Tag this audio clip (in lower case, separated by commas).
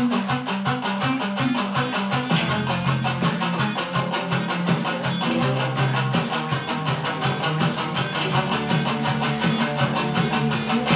musical instrument, electric guitar, plucked string instrument, music, guitar